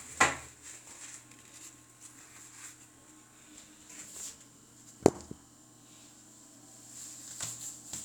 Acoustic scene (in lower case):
restroom